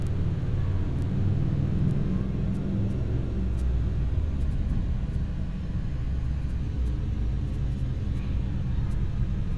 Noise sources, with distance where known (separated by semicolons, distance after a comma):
engine of unclear size, far